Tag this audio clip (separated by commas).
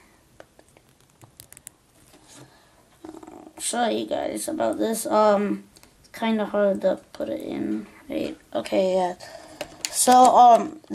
Speech, inside a small room